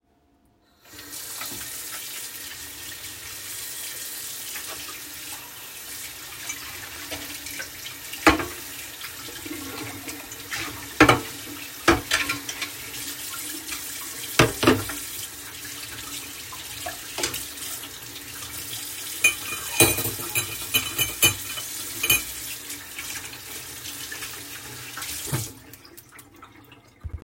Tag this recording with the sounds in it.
running water, cutlery and dishes